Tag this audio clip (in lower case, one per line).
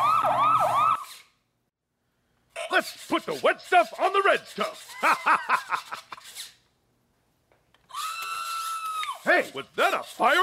speech